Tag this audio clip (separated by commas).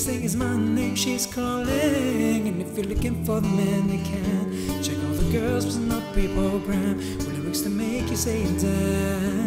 Musical instrument, Guitar, Singing, Music